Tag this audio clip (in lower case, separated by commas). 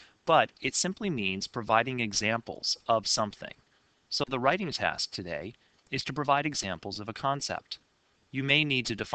speech